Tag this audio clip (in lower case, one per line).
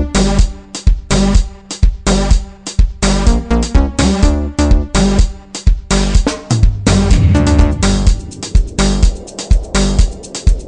music